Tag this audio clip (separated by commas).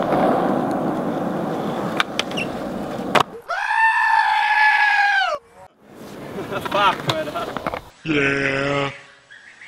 Bleat, Sheep